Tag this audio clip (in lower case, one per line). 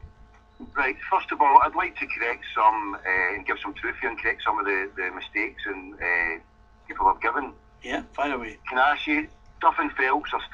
radio
speech